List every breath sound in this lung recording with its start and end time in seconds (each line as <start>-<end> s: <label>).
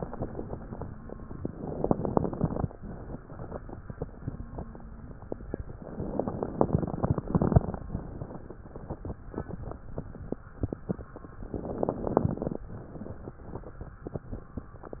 1.48-2.66 s: inhalation
6.01-7.89 s: inhalation
11.55-12.64 s: inhalation